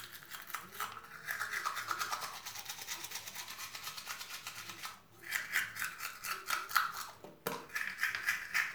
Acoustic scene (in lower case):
restroom